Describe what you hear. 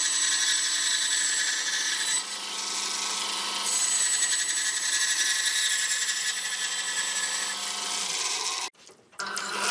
A saw machine works